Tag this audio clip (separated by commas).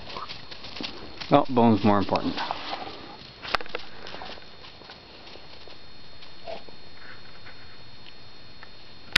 Speech